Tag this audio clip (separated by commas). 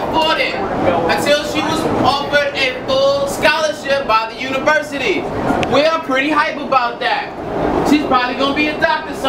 Speech, Train, Vehicle